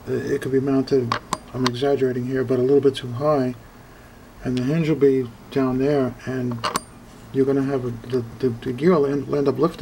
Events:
[0.01, 9.81] background noise
[0.03, 1.18] man speaking
[1.51, 3.53] man speaking
[4.40, 5.26] man speaking
[5.64, 6.75] man speaking
[7.21, 8.21] man speaking
[8.34, 9.81] man speaking

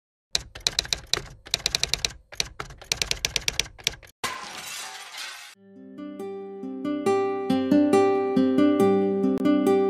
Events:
[0.27, 4.09] typewriter
[4.20, 5.52] shatter
[5.54, 9.85] music
[9.32, 9.46] tick

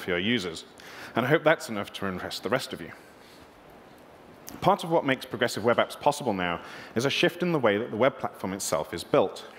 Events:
[0.00, 0.57] man speaking
[0.01, 9.55] background noise
[0.94, 2.95] man speaking
[4.37, 6.61] man speaking
[6.90, 9.34] man speaking

